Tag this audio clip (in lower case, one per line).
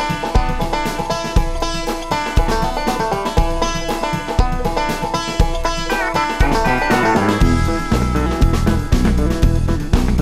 music
banjo